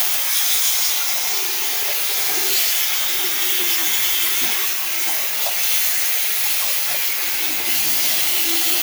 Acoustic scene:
restroom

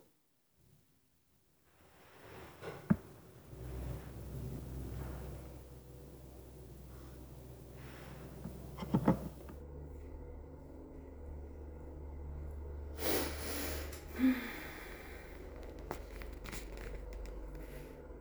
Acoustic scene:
elevator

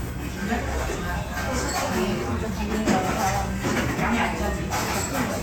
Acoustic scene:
restaurant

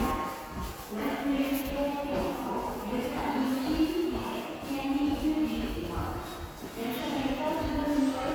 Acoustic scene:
subway station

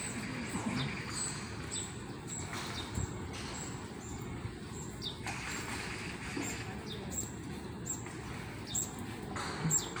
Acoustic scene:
park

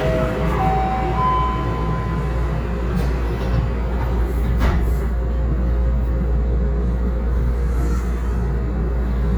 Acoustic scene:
subway train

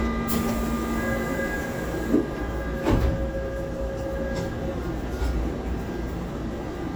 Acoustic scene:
subway train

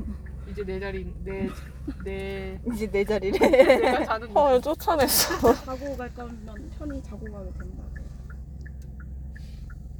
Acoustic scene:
car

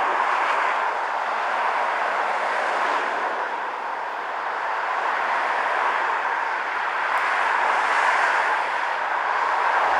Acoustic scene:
street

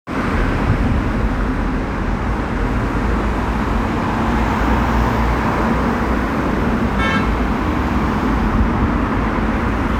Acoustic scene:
street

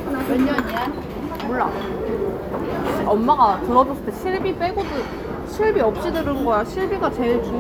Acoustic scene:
crowded indoor space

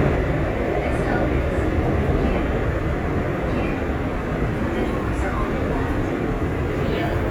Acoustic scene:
subway train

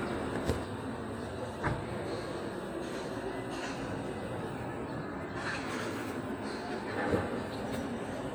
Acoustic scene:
park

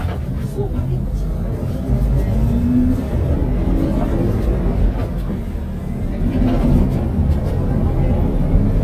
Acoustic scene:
bus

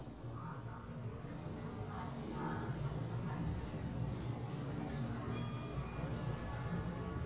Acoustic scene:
elevator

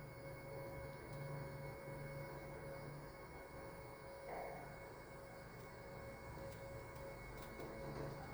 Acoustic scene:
elevator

